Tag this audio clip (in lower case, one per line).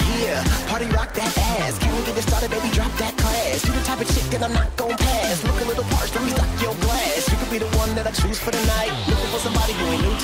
funk
music